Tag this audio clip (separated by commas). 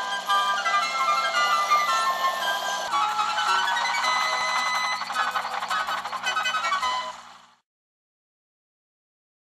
Music